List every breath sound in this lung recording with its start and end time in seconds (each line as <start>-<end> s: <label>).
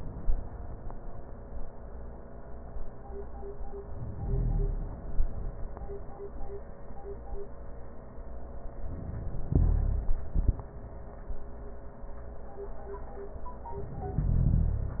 3.88-5.53 s: inhalation
8.74-10.30 s: inhalation